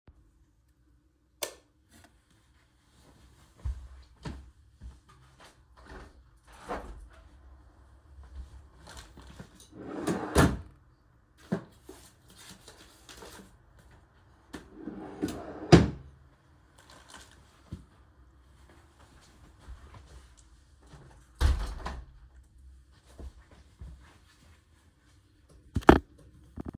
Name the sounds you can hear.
light switch, window, wardrobe or drawer